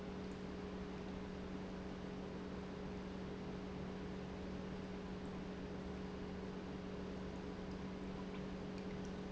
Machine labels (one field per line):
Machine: pump